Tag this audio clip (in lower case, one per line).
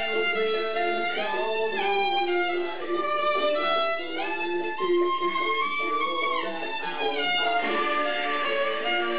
fiddle
musical instrument
music